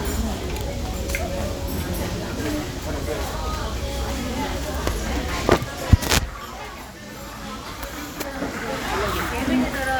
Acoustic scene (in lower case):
restaurant